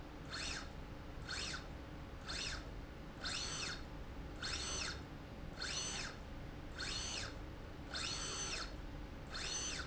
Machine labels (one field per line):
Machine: slide rail